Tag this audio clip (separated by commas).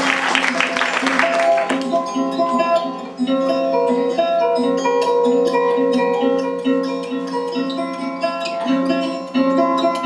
Music